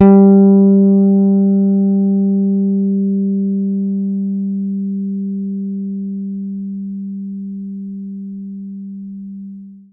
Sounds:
bass guitar
plucked string instrument
guitar
musical instrument
music

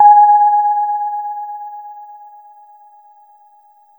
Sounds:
musical instrument
music
piano
keyboard (musical)

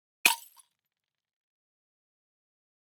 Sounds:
shatter
glass

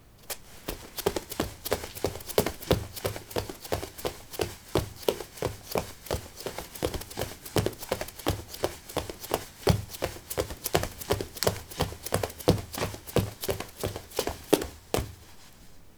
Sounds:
run

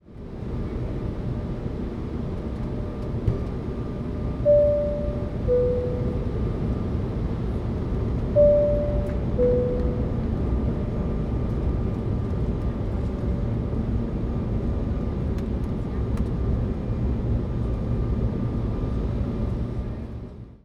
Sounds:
aircraft
vehicle
fixed-wing aircraft

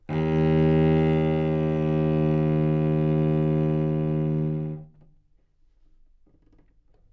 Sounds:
bowed string instrument
musical instrument
music

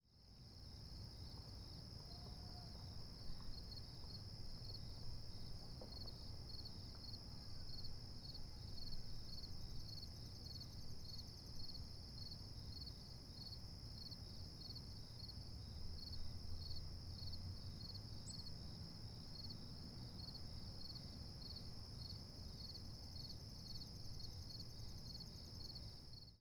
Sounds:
animal
insect
cricket
wild animals

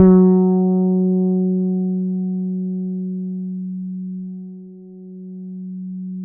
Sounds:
bass guitar
plucked string instrument
music
guitar
musical instrument

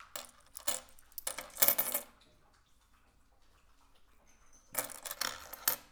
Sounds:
coin (dropping)
domestic sounds

